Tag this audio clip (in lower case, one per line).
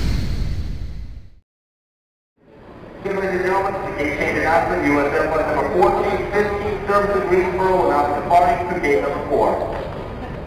speech